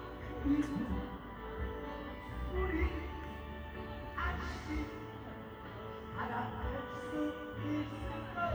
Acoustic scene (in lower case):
park